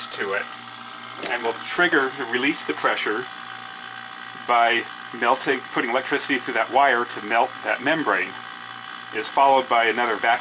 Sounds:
speech

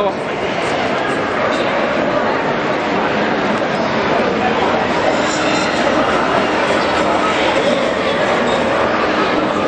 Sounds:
walk, speech

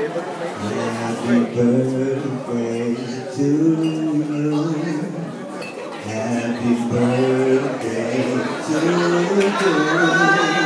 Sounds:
speech, male singing

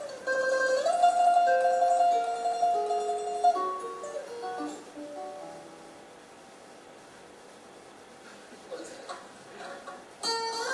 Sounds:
speech, acoustic guitar, strum, guitar, plucked string instrument, musical instrument, music

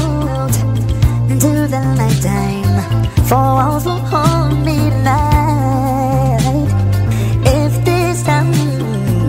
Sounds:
happy music, music

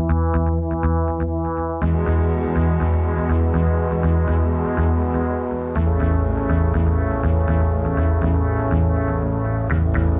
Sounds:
electronica, music

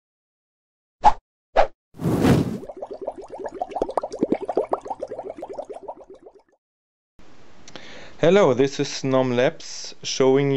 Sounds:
plop, speech

